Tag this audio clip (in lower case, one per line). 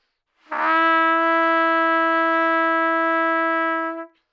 musical instrument
trumpet
music
brass instrument